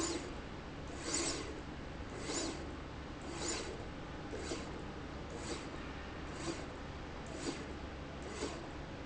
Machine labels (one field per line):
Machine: slide rail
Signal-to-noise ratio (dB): 0 dB